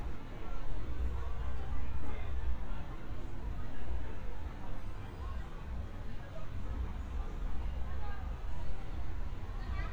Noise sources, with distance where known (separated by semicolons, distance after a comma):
person or small group talking, far